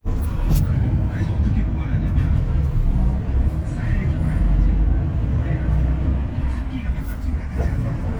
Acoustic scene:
bus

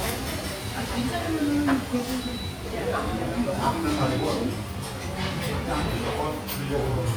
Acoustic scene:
restaurant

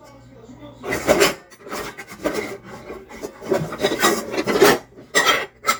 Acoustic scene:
kitchen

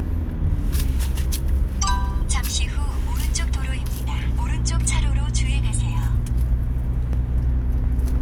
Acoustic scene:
car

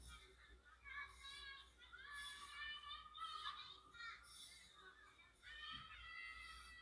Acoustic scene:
residential area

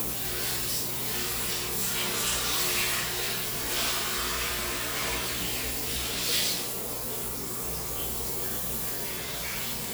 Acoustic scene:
restroom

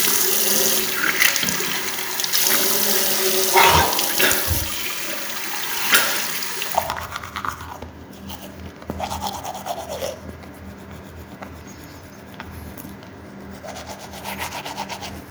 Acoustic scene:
restroom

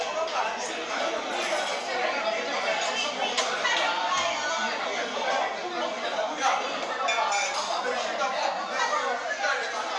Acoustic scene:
restaurant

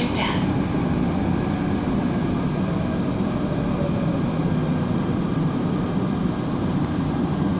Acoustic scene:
subway train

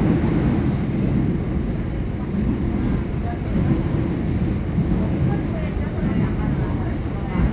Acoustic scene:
subway train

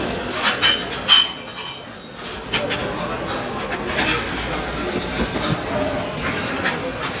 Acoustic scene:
restaurant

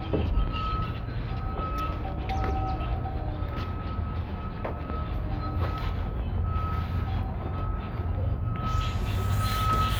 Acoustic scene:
residential area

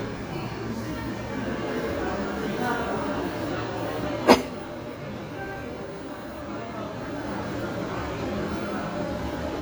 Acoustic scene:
cafe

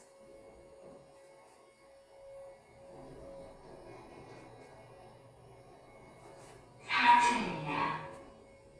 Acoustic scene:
elevator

